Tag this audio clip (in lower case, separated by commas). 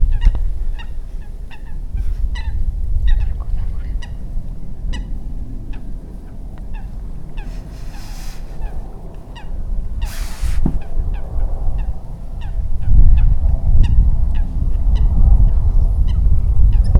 wind, animal, bird, wild animals